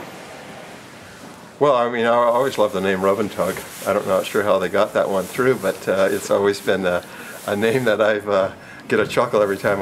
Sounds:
speech

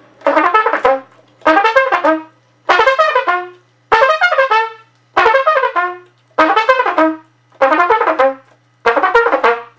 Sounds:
playing bugle

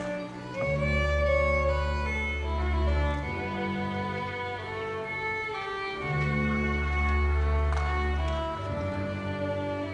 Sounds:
music, musical instrument, fiddle

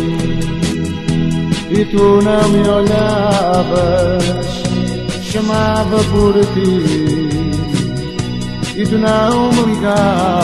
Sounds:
music

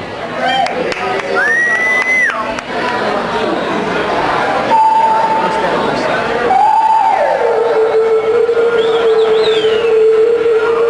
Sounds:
speech, music

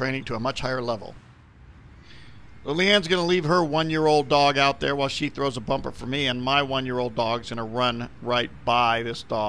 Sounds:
speech

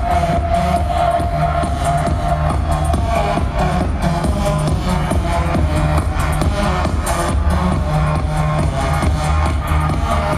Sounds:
music, soundtrack music

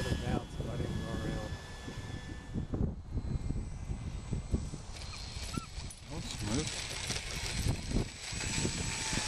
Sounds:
dog, speech, pets, animal

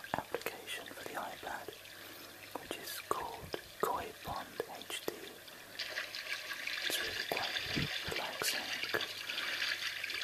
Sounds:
whispering, speech

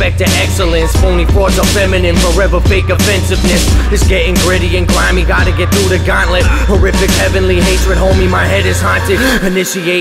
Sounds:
rhythm and blues, music

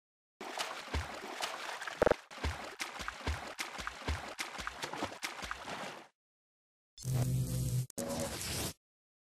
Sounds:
stream

